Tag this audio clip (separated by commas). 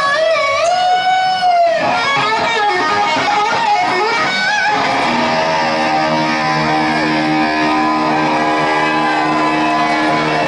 Guitar, Electric guitar, Plucked string instrument, Musical instrument, Music